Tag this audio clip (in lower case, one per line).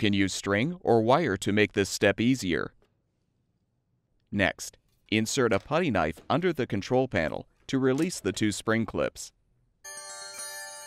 speech
music